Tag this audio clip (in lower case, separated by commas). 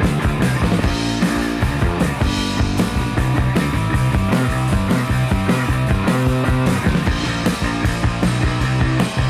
music, punk rock